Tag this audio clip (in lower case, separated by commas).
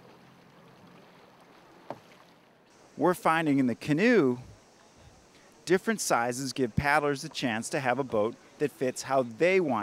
boat, vehicle, speech